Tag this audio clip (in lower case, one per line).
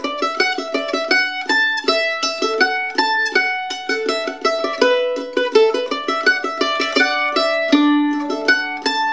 music
musical instrument